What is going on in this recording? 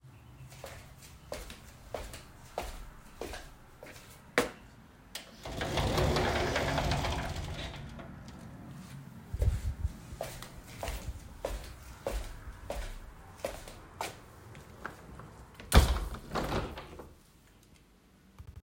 I walked towards the wardrobe and closed it. Then I walked across the room and closed the window.